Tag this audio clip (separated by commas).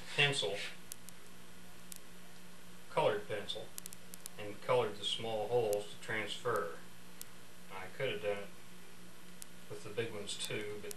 Speech